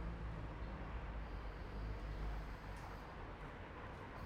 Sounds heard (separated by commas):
car wheels rolling, car, people talking